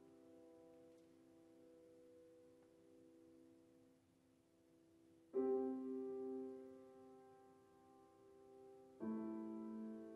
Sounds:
musical instrument
music
piano

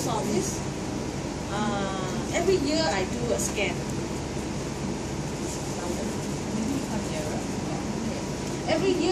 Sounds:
speech

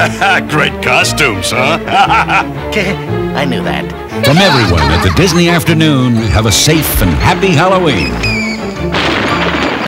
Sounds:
speech
music

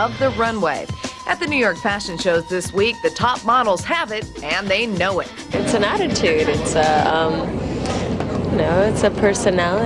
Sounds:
music
speech

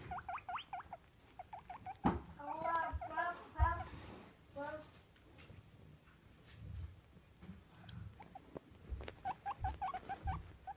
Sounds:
speech

